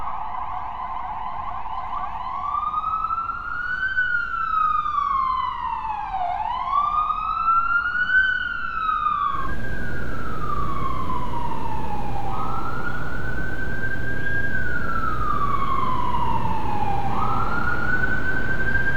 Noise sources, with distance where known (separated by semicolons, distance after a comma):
siren